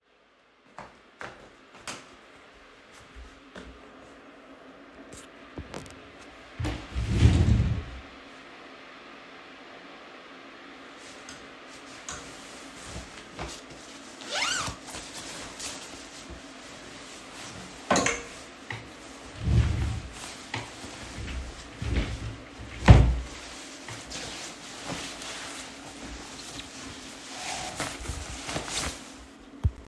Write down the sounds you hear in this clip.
wardrobe or drawer